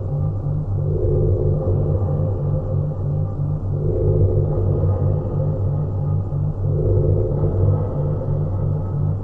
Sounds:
Sound effect

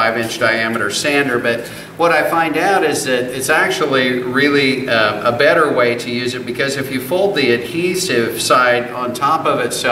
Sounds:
Speech

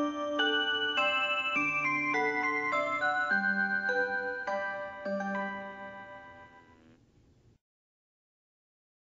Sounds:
Music

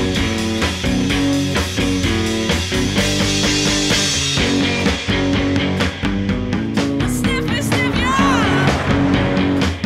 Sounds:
Music, Speech

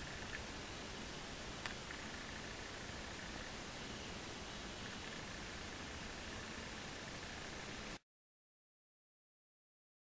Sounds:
woodpecker pecking tree

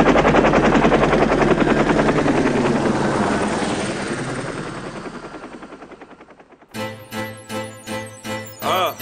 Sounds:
Music

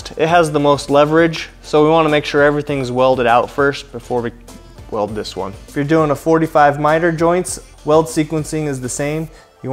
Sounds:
arc welding

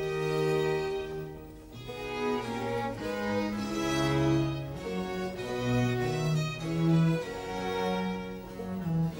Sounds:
Music

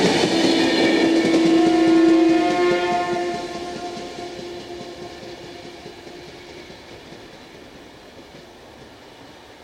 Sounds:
train whistling

